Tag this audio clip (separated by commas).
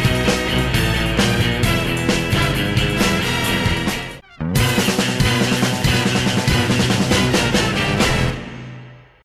Music